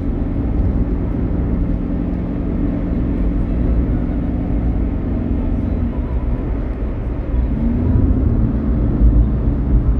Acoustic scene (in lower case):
car